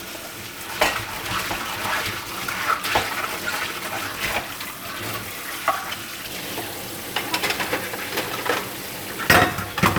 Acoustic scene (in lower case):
kitchen